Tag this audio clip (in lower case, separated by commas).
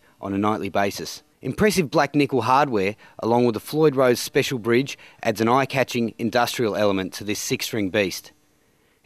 speech